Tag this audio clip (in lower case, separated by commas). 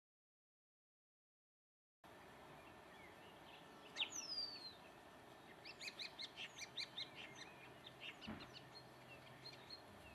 tweet, bird call, bird